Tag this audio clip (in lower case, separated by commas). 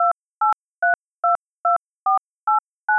telephone, alarm